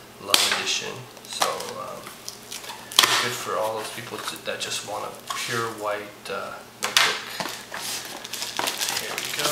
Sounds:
Speech

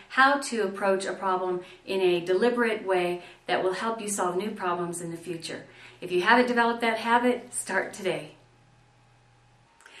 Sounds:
Speech

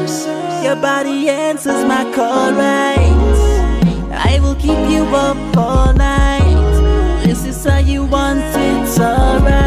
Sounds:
Rhythm and blues, Hip hop music, Music

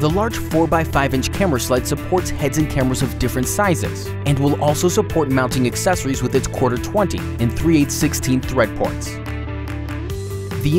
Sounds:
Speech, Music

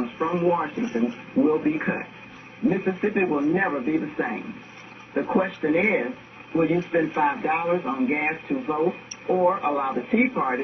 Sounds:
Radio, Speech

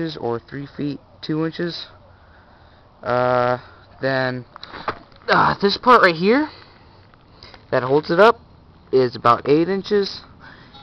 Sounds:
Speech

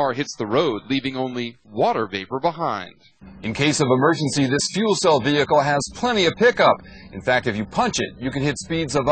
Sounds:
Speech

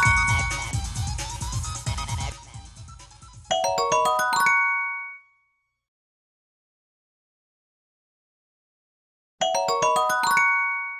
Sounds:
Glockenspiel, Jingle, Mallet percussion, Marimba

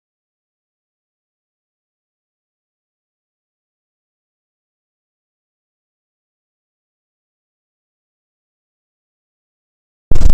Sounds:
Silence

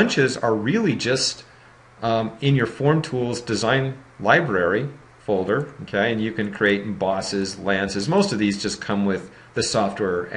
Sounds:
Speech

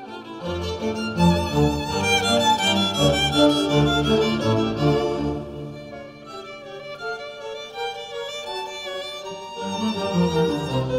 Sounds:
Music

